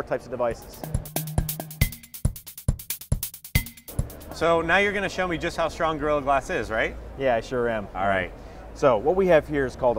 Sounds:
Speech, Music

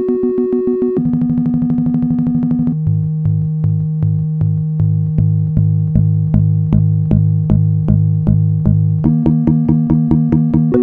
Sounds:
Music

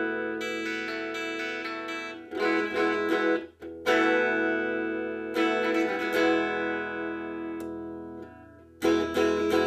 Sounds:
Plucked string instrument, Guitar, Music, Musical instrument, Rock music, Electric guitar, Acoustic guitar

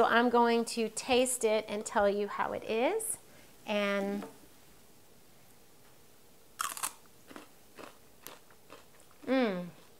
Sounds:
mastication, Biting, Speech, inside a small room

